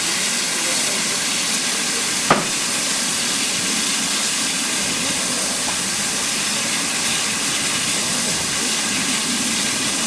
Strong stream of water